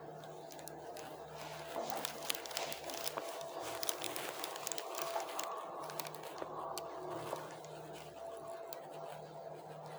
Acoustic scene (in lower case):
elevator